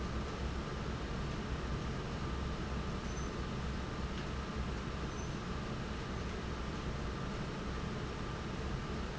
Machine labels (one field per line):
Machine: fan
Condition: normal